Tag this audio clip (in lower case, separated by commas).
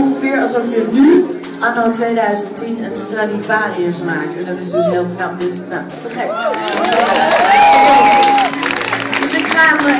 speech, music